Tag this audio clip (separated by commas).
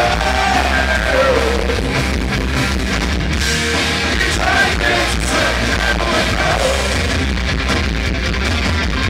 Strum, Guitar, Electric guitar, Musical instrument, Plucked string instrument, Music